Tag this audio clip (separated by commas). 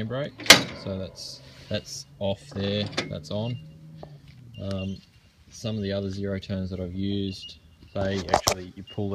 Speech